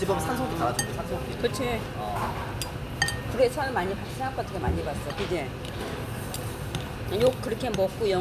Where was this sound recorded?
in a restaurant